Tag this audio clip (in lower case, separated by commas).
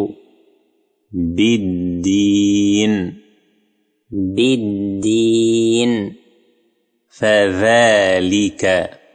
speech